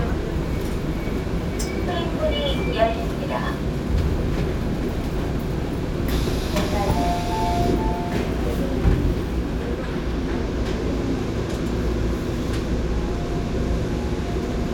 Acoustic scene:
subway train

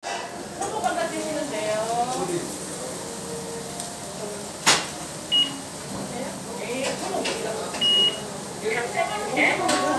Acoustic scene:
restaurant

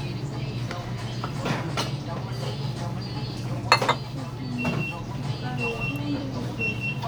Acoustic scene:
restaurant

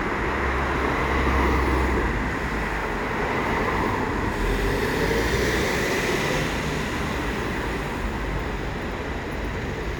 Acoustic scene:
street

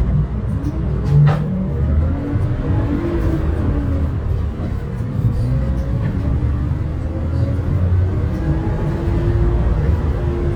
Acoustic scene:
bus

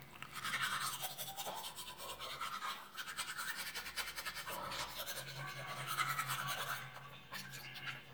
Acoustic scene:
restroom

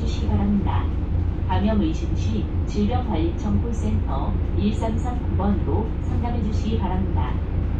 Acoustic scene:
bus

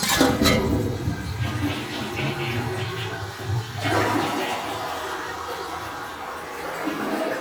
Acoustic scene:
restroom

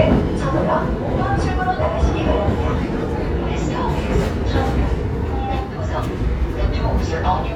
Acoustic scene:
subway train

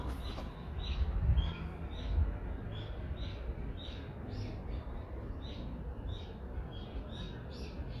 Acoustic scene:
residential area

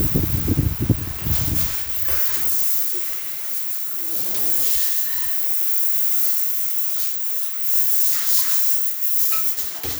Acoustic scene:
restroom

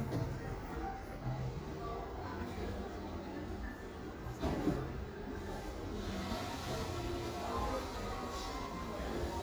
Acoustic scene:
cafe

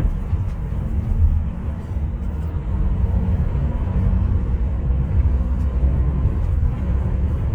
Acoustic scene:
bus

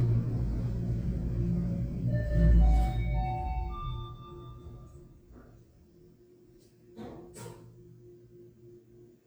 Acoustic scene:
elevator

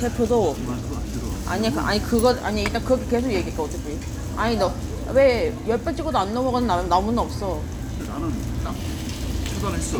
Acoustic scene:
crowded indoor space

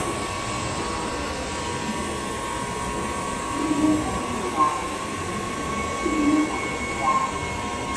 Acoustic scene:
subway train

